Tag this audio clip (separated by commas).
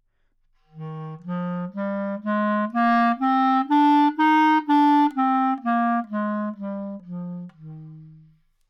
Musical instrument, woodwind instrument, Music